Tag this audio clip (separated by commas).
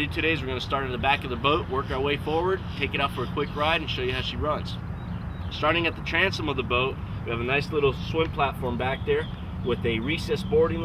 Speech